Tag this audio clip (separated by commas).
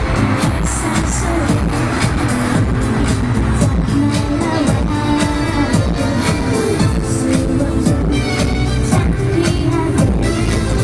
Music